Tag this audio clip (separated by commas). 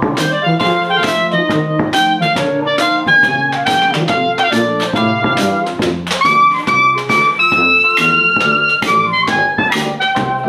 Music